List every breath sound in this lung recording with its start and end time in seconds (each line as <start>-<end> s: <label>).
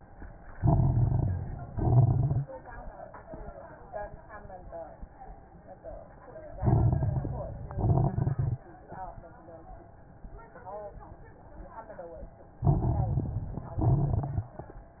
0.53-1.63 s: inhalation
0.53-1.63 s: crackles
1.73-2.47 s: exhalation
1.73-2.47 s: crackles
6.58-7.67 s: inhalation
6.58-7.67 s: crackles
7.72-8.69 s: exhalation
7.72-8.69 s: crackles
12.64-13.72 s: inhalation
12.64-13.72 s: crackles
13.79-14.67 s: exhalation
13.79-14.67 s: crackles